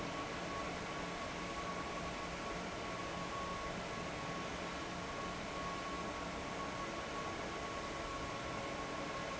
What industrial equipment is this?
fan